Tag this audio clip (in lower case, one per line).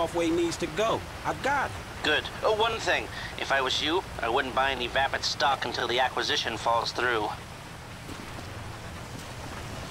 speech